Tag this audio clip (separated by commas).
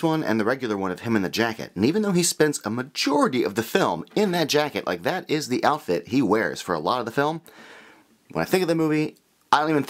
Speech